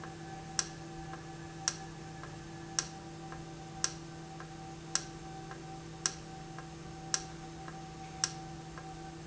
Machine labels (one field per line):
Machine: valve